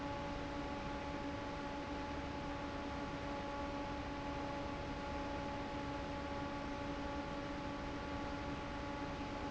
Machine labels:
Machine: fan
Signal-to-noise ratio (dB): 0 dB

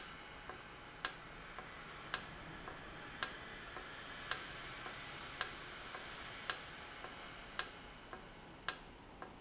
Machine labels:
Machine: valve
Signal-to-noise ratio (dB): 6 dB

